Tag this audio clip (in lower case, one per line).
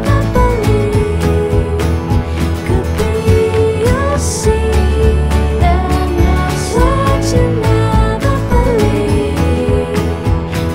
music